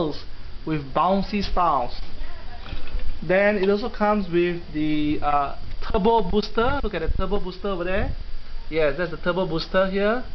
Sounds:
Speech

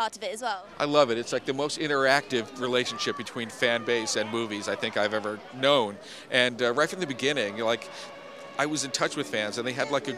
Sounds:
Speech

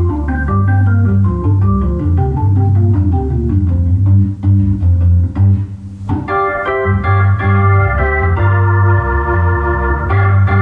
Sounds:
playing electronic organ, Electronic organ, Organ

